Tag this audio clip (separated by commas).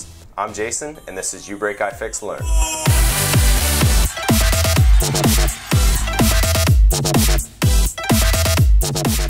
man speaking, Music, Speech